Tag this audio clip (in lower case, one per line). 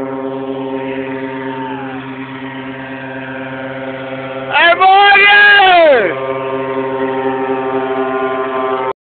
speech